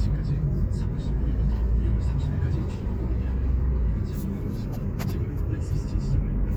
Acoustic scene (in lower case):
car